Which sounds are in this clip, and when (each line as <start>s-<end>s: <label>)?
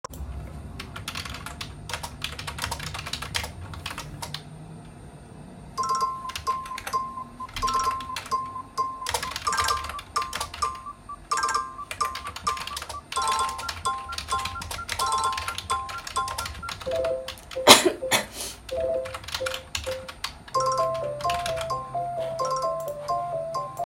0.0s-4.7s: keyboard typing
5.6s-22.4s: keyboard typing
5.6s-23.9s: phone ringing